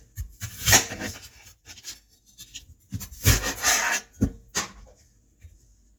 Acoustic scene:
kitchen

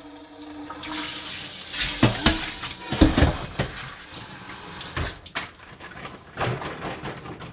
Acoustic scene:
kitchen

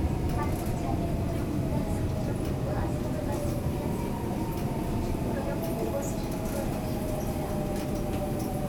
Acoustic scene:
subway station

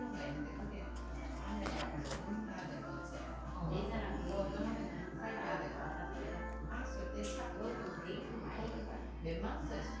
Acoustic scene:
crowded indoor space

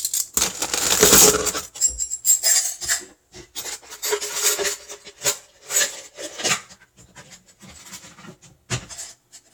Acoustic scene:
kitchen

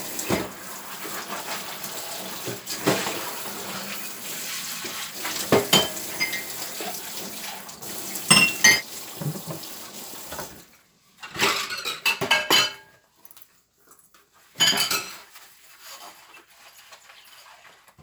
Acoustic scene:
kitchen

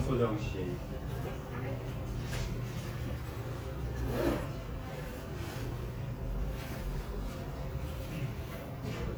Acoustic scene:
crowded indoor space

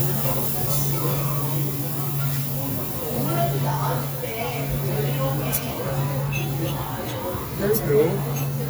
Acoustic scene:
restaurant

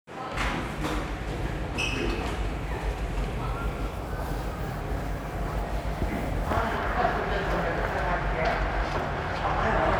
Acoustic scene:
subway station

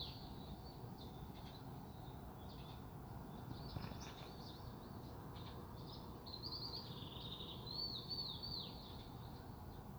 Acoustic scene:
park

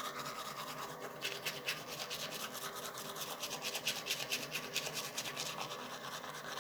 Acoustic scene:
restroom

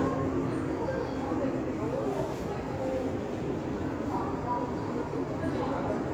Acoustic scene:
subway station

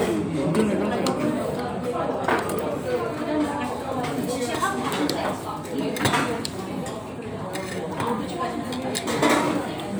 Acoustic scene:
restaurant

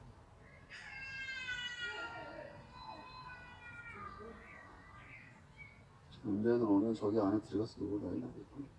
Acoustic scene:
park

